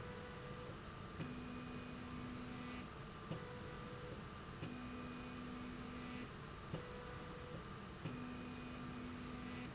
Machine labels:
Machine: slide rail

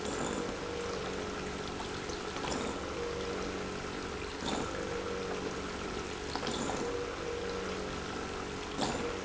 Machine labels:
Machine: pump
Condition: abnormal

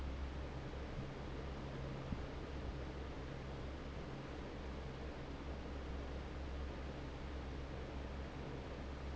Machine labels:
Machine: fan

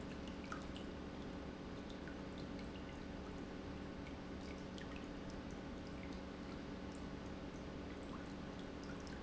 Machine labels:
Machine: pump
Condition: normal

